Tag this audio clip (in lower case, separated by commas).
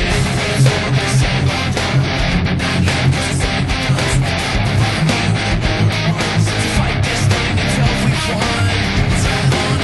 music, musical instrument, guitar